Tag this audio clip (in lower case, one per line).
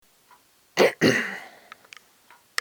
cough
respiratory sounds